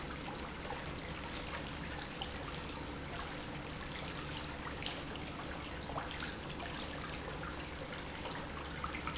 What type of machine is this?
pump